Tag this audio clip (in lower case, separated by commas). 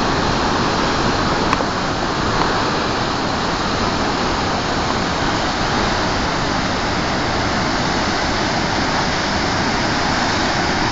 waterfall burbling, waterfall